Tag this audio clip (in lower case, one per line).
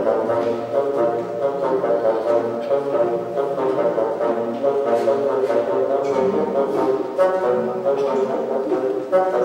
playing bassoon